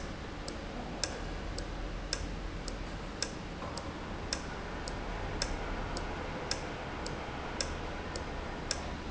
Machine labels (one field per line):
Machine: valve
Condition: normal